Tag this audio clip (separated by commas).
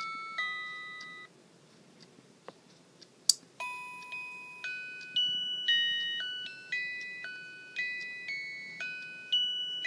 Music, Tick-tock